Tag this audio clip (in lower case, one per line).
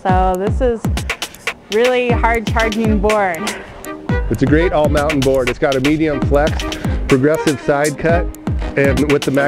music
speech